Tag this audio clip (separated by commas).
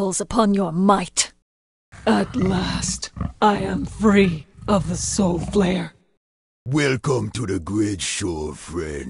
Speech